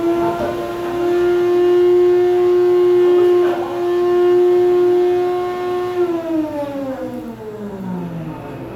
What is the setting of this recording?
cafe